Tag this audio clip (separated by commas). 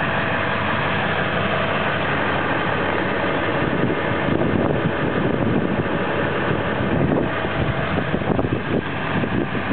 Vehicle